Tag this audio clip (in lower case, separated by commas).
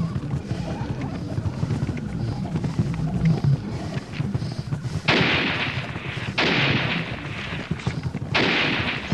animal, gunfire